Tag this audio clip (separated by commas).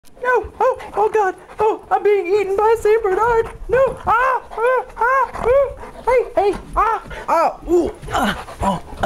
Speech, Dog, pets, Animal, inside a small room